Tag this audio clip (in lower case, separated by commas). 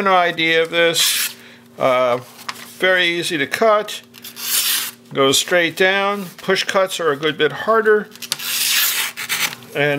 speech, inside a small room